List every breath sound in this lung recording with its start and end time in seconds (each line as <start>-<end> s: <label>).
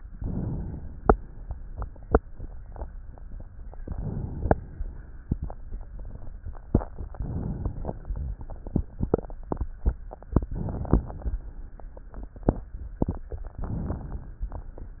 0.00-1.04 s: inhalation
1.02-3.34 s: exhalation
3.81-5.05 s: inhalation
6.94-8.13 s: inhalation
8.13-9.40 s: exhalation
10.20-11.33 s: inhalation
11.30-12.63 s: exhalation
13.20-14.53 s: inhalation